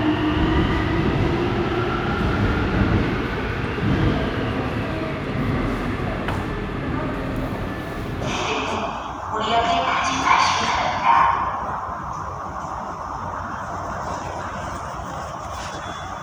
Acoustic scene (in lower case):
subway station